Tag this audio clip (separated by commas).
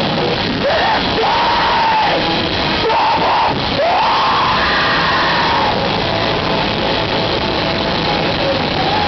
Music